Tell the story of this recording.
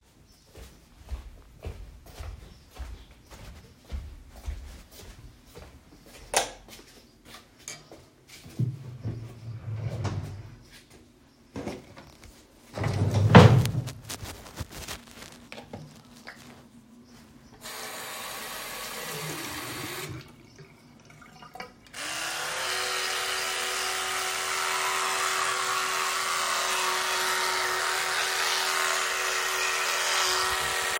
I went to the bathroom and turned on the light. Opened a drawer and picked up my electric toothbrush. Lastly started brushing my teeth.